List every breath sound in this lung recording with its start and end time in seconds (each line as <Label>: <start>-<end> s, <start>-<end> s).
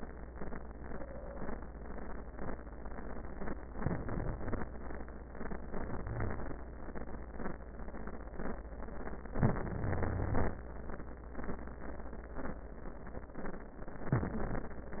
Inhalation: 3.77-4.68 s, 6.03-6.57 s, 9.38-10.53 s, 14.15-14.68 s
Wheeze: 6.03-6.57 s, 9.86-10.53 s